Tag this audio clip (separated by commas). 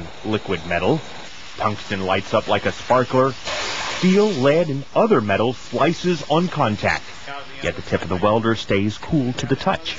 Speech